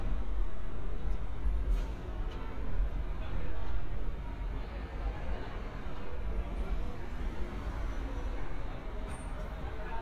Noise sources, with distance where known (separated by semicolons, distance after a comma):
unidentified human voice